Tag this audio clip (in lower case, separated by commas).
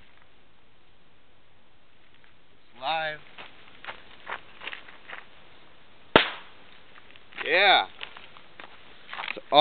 burst, speech